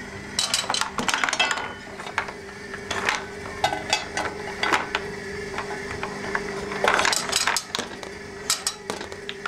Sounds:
inside a small room

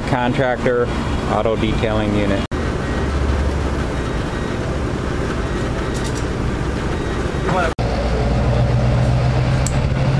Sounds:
speech
vehicle

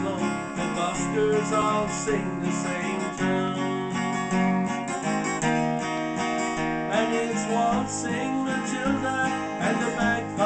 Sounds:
male singing
music

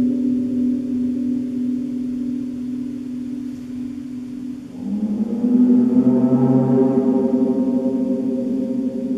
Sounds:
playing gong

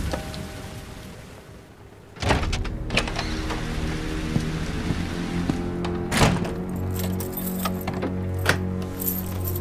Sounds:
music

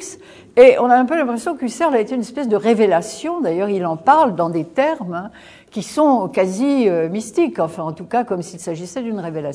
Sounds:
speech

